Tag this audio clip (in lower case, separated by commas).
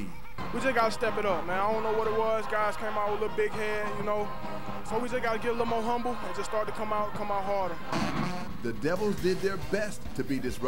music, speech